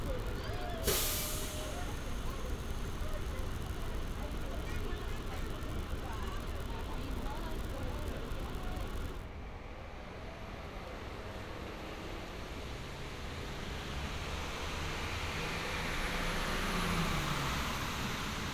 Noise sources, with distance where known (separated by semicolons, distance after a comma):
large-sounding engine, near